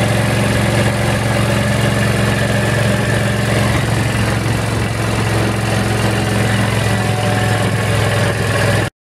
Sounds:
Vehicle

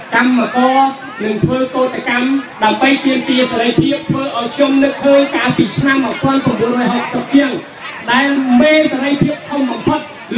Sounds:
man speaking, Speech, monologue

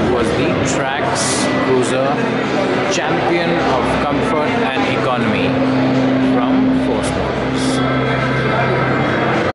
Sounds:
Speech

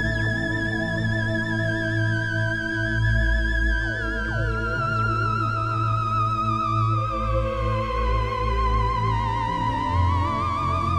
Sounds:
playing theremin

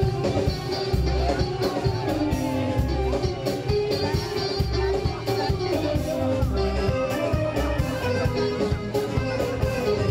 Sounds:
Speech, Music

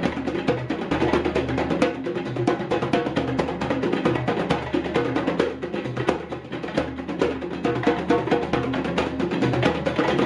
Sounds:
playing djembe

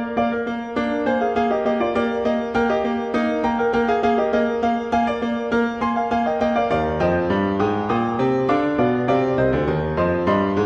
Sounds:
Musical instrument, Music

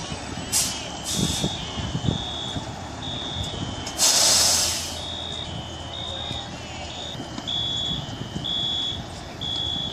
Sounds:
Speech

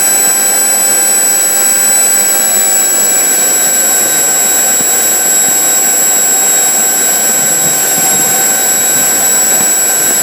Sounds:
Medium engine (mid frequency), Engine

